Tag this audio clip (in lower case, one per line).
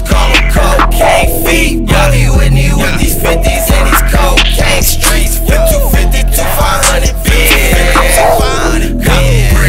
music